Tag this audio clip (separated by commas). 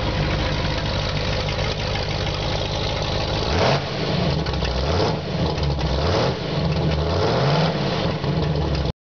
Engine, Idling, Vehicle, revving